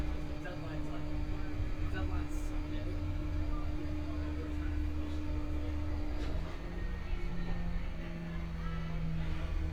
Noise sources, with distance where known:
person or small group talking, near

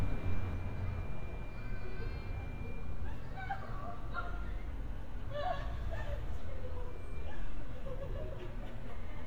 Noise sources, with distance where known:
unidentified human voice

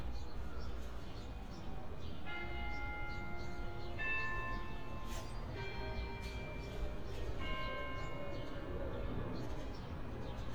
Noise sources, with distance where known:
music from an unclear source, near

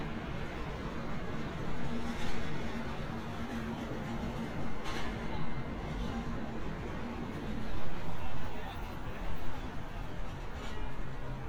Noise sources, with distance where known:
person or small group talking

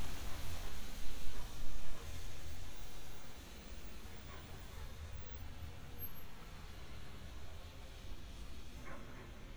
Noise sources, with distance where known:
dog barking or whining, far

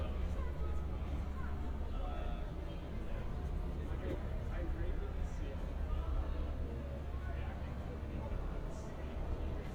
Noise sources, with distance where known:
person or small group talking, near

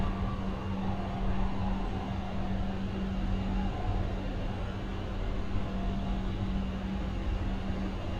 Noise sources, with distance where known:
siren, far

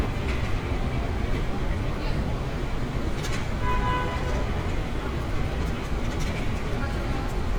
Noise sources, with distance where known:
car horn, near
unidentified human voice, near

